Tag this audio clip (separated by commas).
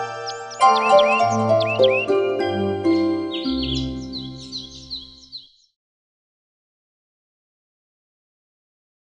Music